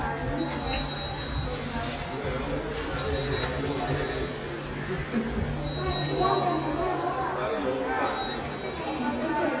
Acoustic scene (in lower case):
subway station